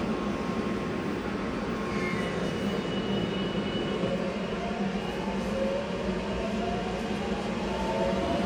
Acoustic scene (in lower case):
subway station